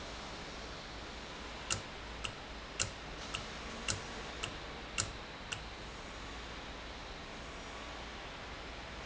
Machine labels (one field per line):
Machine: valve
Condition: normal